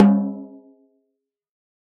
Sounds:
drum
snare drum
percussion
musical instrument
music

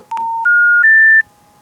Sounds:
alarm
telephone

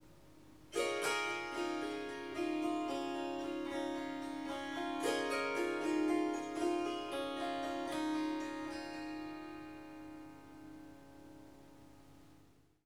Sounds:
harp
musical instrument
music

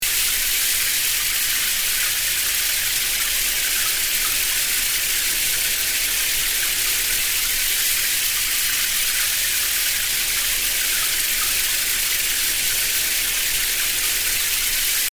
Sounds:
home sounds
bathtub (filling or washing)

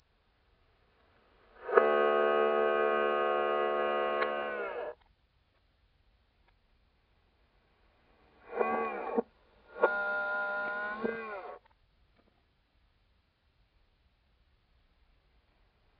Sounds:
camera
mechanisms

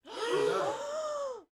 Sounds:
breathing
respiratory sounds

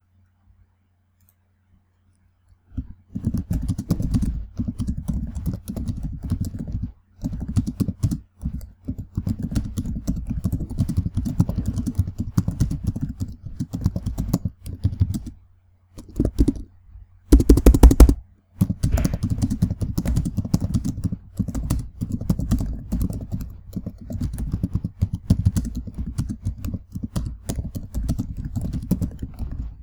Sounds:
domestic sounds
typing
computer keyboard

